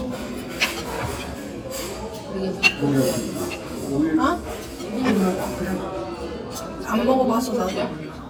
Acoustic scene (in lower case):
restaurant